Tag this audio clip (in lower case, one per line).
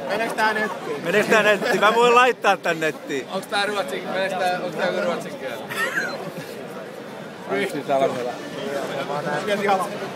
speech
outside, urban or man-made